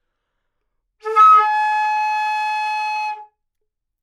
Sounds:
woodwind instrument
musical instrument
music

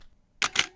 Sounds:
camera
mechanisms

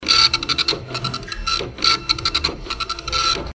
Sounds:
printer
mechanisms

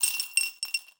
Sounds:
home sounds
coin (dropping)
glass

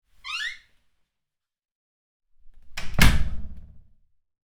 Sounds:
home sounds
slam
door

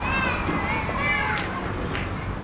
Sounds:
human group actions

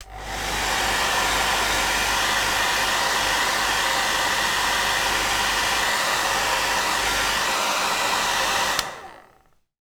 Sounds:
domestic sounds

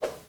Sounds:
swoosh

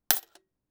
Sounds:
domestic sounds
coin (dropping)

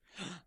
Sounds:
gasp
breathing
respiratory sounds

